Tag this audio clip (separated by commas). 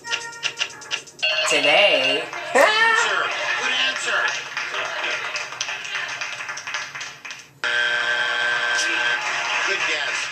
Speech, Music